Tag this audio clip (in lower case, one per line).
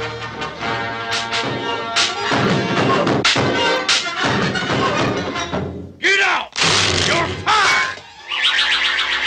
music
speech